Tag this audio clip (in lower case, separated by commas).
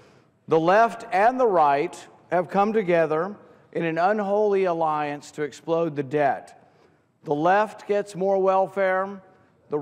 man speaking, speech